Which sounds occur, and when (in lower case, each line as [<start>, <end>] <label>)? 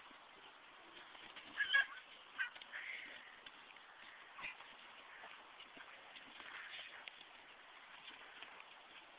[0.00, 9.15] background noise
[1.54, 1.90] neigh
[2.22, 8.58] clip-clop
[4.37, 4.57] speech